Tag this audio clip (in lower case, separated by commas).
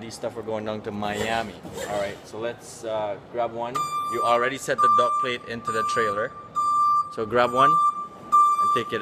vehicle, speech